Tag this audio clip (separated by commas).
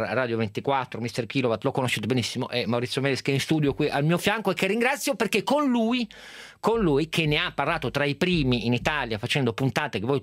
Speech